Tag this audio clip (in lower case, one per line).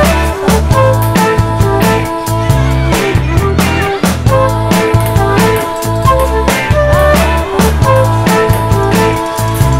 music
speech